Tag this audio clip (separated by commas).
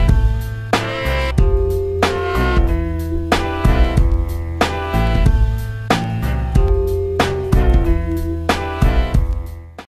Music